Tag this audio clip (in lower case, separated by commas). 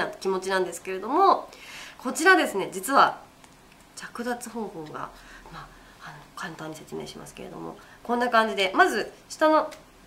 speech